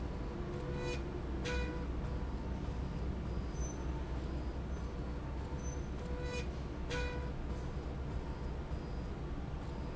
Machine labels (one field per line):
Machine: slide rail